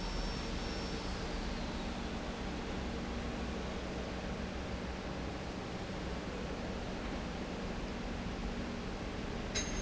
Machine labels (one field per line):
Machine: pump